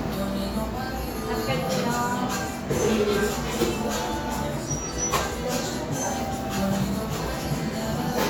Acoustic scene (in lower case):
cafe